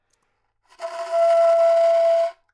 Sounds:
woodwind instrument
musical instrument
music

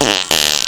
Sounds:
fart

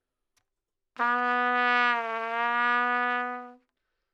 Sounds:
brass instrument
music
musical instrument
trumpet

